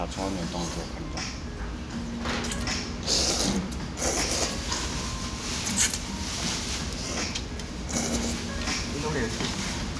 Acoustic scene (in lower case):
restaurant